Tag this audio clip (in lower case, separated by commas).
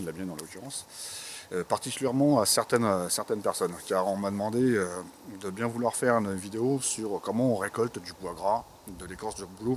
speech